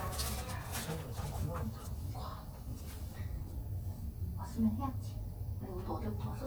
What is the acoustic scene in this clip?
elevator